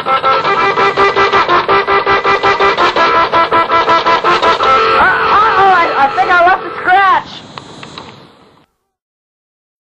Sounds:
Speech, Music

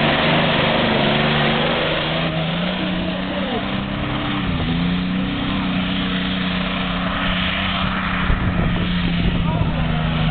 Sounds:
Vehicle, Speech

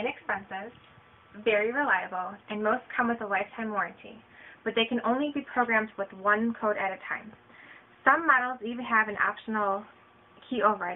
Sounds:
Speech

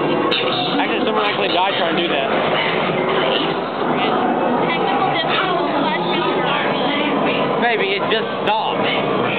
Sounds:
Speech

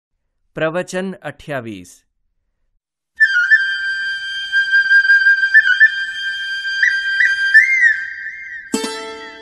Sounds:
Flute, Music, Speech

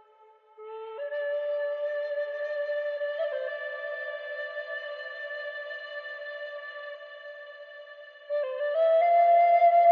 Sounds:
Music

